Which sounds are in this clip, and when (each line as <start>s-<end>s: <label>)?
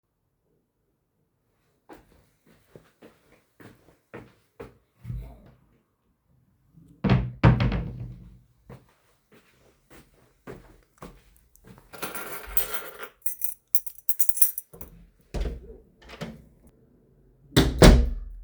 1.9s-4.8s: footsteps
4.7s-5.4s: wardrobe or drawer
7.0s-8.4s: wardrobe or drawer
8.7s-12.0s: footsteps
12.2s-14.9s: keys
15.3s-16.6s: door
17.5s-18.4s: door